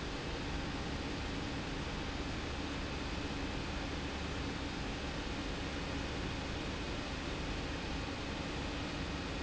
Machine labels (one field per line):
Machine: pump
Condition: abnormal